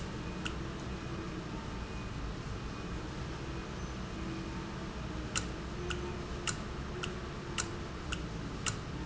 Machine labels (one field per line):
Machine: valve